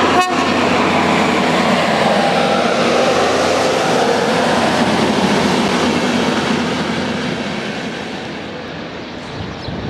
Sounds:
train wagon, Vehicle, Train, Rail transport

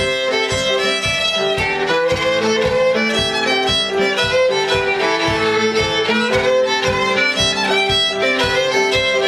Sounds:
Violin, Music, Musical instrument

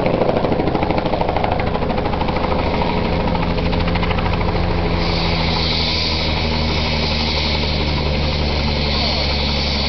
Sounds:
Speech

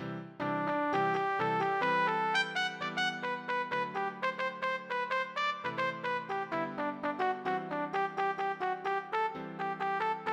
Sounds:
Trumpet, Musical instrument, Music

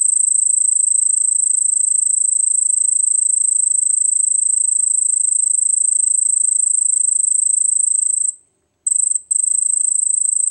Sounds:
cricket chirping

